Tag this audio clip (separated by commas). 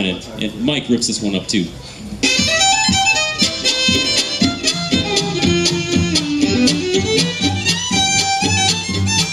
Music, Musical instrument, Speech, Violin